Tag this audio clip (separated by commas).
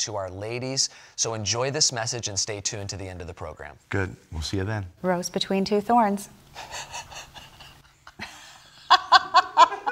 Speech